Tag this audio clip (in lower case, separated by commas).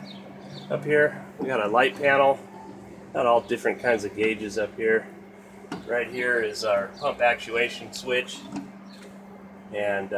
bird, speech